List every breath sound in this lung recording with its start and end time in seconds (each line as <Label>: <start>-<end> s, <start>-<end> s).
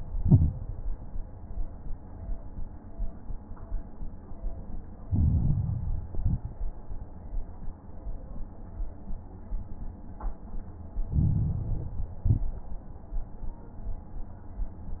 Inhalation: 5.05-6.06 s, 11.10-12.10 s
Exhalation: 0.10-0.64 s, 6.12-6.57 s, 12.18-12.63 s
Crackles: 0.10-0.64 s, 5.05-6.06 s, 6.12-6.57 s, 11.10-12.10 s, 12.18-12.63 s